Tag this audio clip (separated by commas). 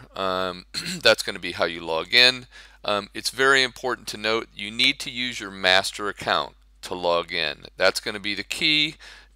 Speech